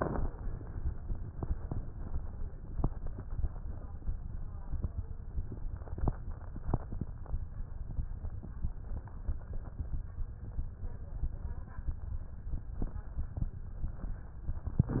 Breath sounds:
Inhalation: 14.82-15.00 s

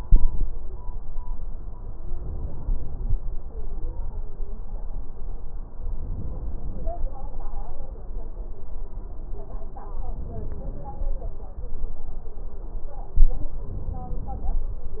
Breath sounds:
Inhalation: 2.14-3.26 s, 5.83-6.96 s, 10.00-11.12 s, 13.64-14.71 s

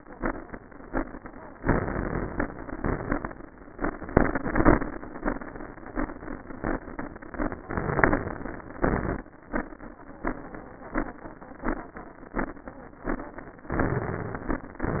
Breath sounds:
Inhalation: 1.61-2.43 s, 7.70-8.74 s, 13.68-14.67 s
Exhalation: 2.49-3.30 s, 8.84-9.31 s, 14.67-15.00 s
Crackles: 1.61-2.43 s, 14.67-15.00 s

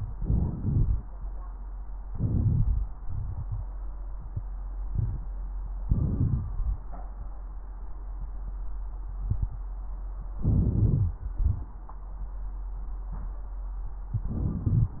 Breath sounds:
Inhalation: 0.13-0.57 s, 2.08-2.88 s, 5.87-6.44 s, 10.40-11.17 s, 14.24-14.69 s
Exhalation: 0.59-1.03 s, 3.07-3.64 s, 6.39-6.86 s, 11.34-11.79 s, 14.69-15.00 s
Crackles: 5.88-6.42 s, 10.40-11.17 s, 14.23-14.69 s

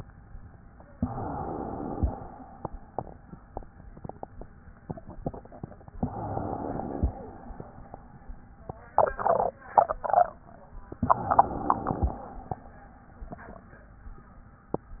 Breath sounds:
Inhalation: 0.89-2.15 s, 6.04-7.08 s, 11.04-12.30 s
Exhalation: 2.15-3.19 s, 7.08-8.41 s, 12.30-13.66 s

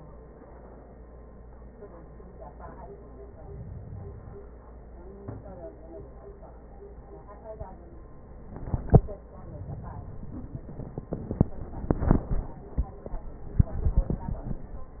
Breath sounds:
Inhalation: 3.16-4.55 s

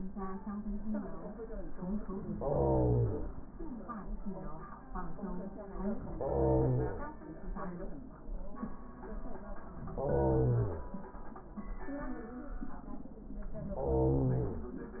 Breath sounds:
Inhalation: 2.31-3.28 s, 6.17-7.14 s, 9.93-10.90 s, 13.69-14.77 s

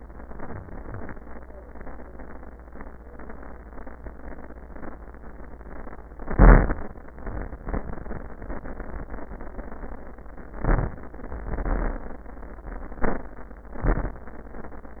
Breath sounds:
Inhalation: 0.22-0.78 s, 6.13-6.82 s, 10.58-11.50 s, 13.01-13.82 s
Exhalation: 0.78-1.13 s, 7.10-7.62 s, 11.50-12.28 s, 13.82-14.23 s

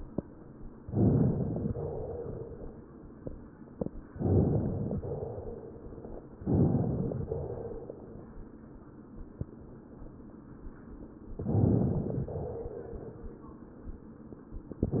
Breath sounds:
Inhalation: 0.82-1.73 s, 4.08-4.99 s, 6.38-7.29 s, 11.40-12.31 s
Exhalation: 1.78-2.73 s, 5.03-5.98 s, 7.27-8.22 s, 12.31-13.26 s

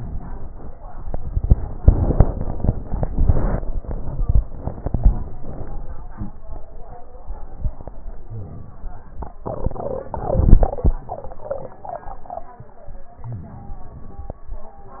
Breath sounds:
Inhalation: 13.29-14.35 s
Exhalation: 5.40-6.22 s

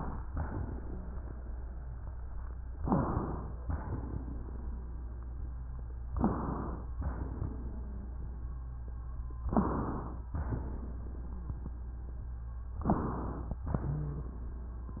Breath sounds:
Inhalation: 2.80-3.56 s, 6.12-6.88 s, 9.48-10.24 s, 12.88-13.64 s
Exhalation: 3.64-5.04 s, 6.96-8.20 s, 10.32-10.98 s, 13.70-14.36 s
Wheeze: 0.78-2.76 s, 2.80-3.10 s, 3.64-6.10 s, 6.98-9.40 s, 9.46-9.74 s, 10.34-12.76 s, 13.70-14.36 s

